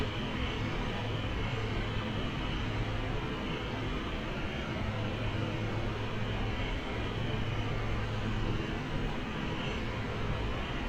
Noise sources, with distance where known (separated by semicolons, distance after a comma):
unidentified impact machinery